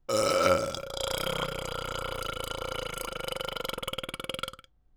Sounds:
Burping

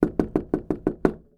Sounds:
Door, Wood, home sounds, Knock

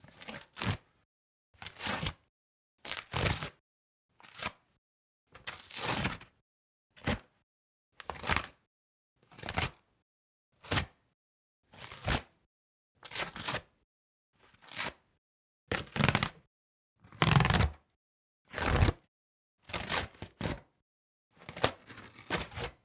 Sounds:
Tearing

